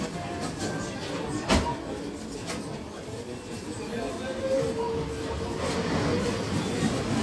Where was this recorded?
in a crowded indoor space